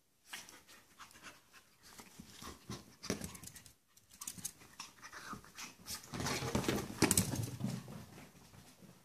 Sniffing of a dog, followed by rustling